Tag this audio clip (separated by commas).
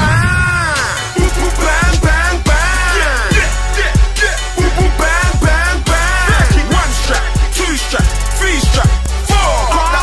Music